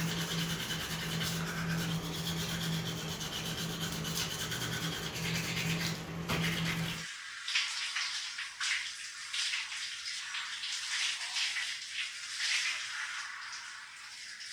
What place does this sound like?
restroom